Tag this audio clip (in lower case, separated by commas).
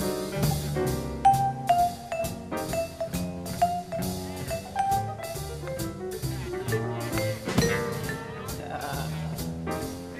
playing vibraphone